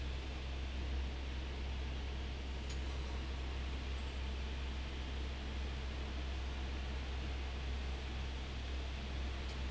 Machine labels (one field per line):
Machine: fan